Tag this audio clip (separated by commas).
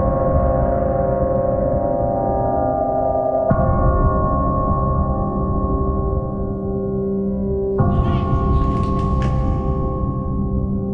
Music